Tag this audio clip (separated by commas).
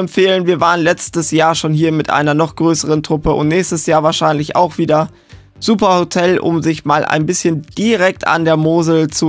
Music, Speech